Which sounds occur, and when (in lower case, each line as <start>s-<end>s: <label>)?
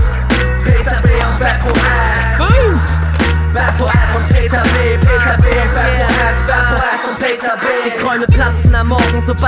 0.0s-9.4s: music
0.7s-2.8s: male singing
3.5s-9.4s: male singing